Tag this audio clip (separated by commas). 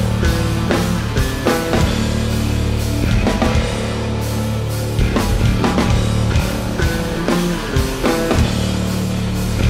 Exciting music, Music